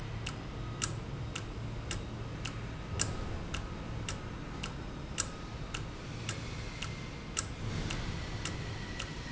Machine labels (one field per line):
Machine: valve